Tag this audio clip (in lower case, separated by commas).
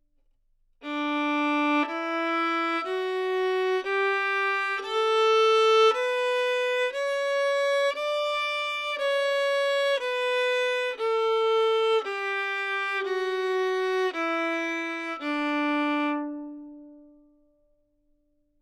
bowed string instrument, musical instrument, music